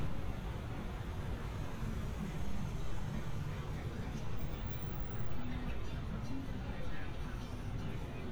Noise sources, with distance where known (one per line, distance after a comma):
music from an unclear source